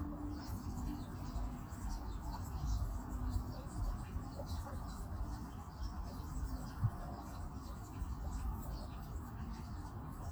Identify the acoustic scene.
park